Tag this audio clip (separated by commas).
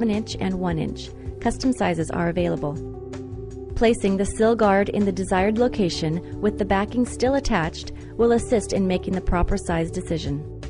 Music, Speech